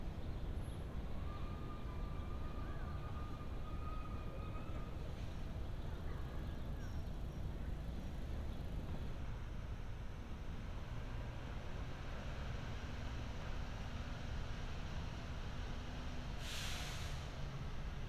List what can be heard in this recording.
medium-sounding engine